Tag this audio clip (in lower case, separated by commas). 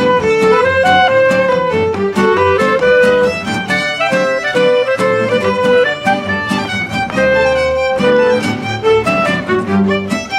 music, orchestra